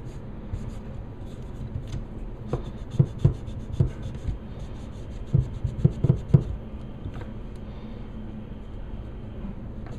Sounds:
inside a small room

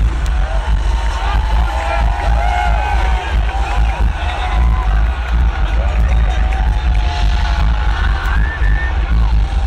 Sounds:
Music

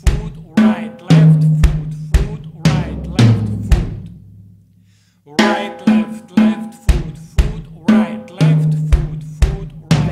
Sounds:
Music

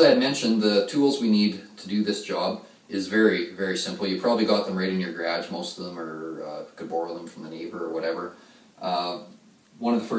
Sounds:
Speech

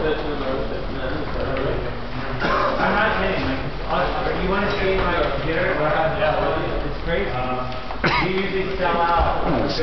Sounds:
Speech

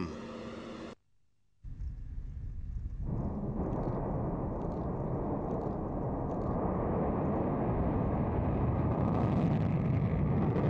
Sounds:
missile launch

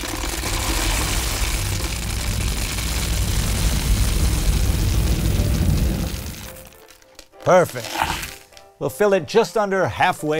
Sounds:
Music, Speech

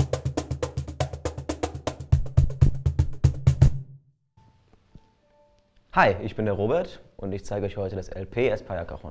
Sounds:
Percussion, Speech, Music

